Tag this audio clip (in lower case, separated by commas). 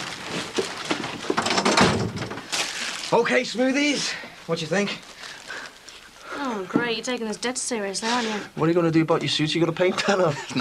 speech